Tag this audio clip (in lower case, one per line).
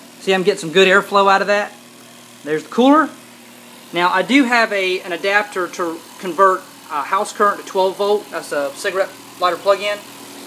speech